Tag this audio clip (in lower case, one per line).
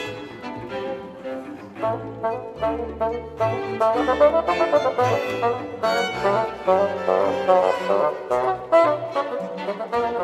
music
musical instrument
classical music
trumpet
fiddle
bowed string instrument